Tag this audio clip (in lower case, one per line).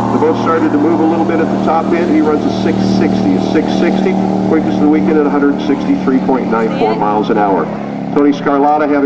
speech
speedboat
vehicle
boat